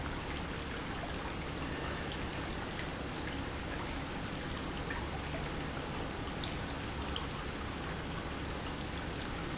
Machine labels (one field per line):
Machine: pump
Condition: normal